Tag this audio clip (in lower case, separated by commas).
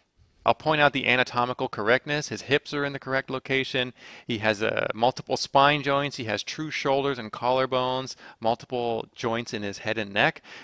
speech